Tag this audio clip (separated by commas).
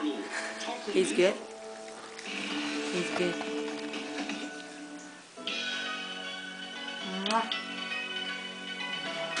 Speech, Music